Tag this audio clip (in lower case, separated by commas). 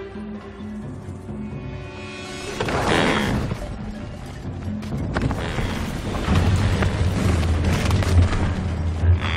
livestock, bovinae